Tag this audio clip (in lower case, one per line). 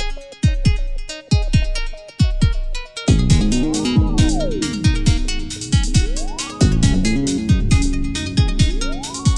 music